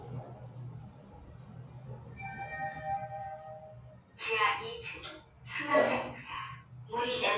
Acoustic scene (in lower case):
elevator